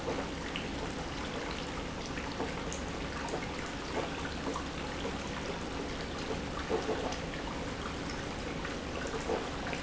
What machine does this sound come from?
pump